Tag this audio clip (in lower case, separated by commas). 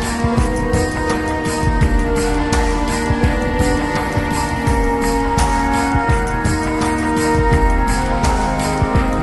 rhythm and blues, music